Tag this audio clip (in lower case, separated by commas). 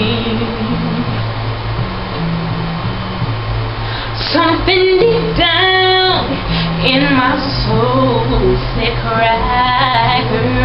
female singing, music